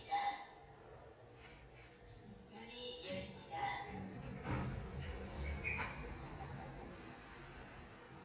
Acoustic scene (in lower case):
elevator